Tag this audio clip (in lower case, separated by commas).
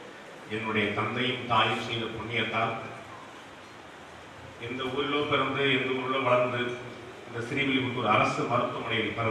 man speaking, speech, monologue